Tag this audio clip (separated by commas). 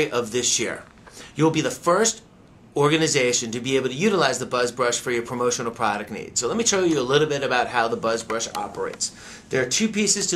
Speech